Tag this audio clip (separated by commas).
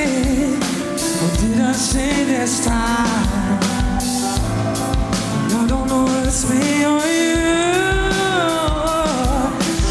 Music